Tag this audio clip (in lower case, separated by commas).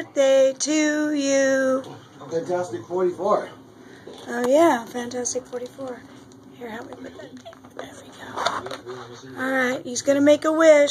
speech